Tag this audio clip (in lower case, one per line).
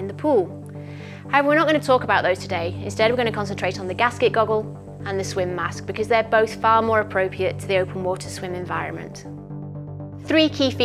music
speech